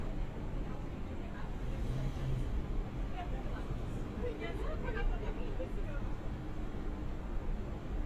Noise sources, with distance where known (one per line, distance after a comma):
person or small group talking, near